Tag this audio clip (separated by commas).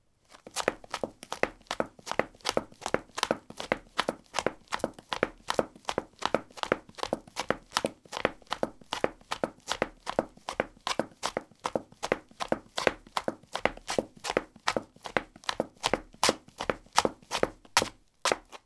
Run